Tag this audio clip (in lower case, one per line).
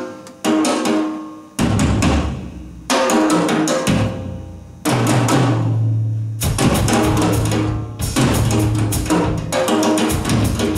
cymbal
music
drum
musical instrument
drum kit